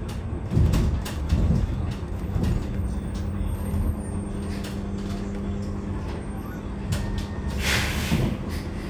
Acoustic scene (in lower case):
bus